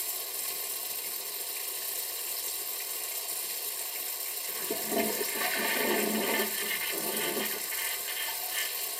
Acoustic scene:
restroom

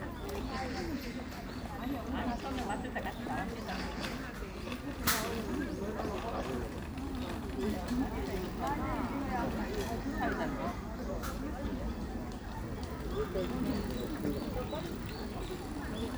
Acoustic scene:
park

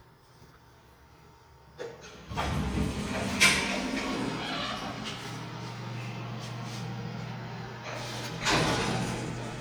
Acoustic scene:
elevator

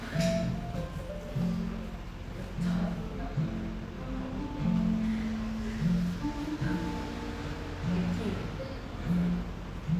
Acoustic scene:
cafe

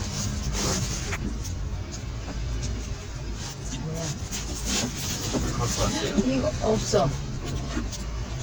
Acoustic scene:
car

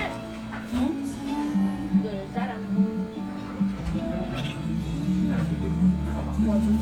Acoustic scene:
crowded indoor space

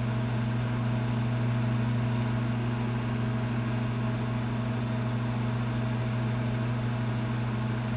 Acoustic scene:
kitchen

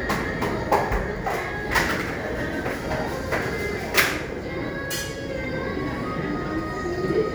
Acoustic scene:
cafe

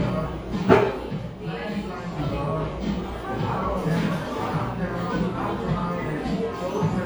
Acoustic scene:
cafe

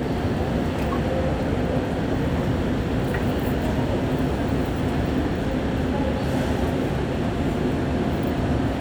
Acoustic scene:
subway train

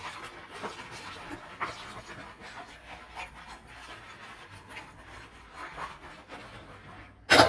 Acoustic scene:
kitchen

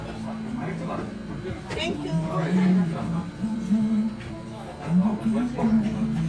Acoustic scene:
crowded indoor space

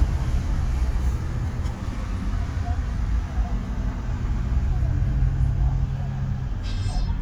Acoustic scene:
car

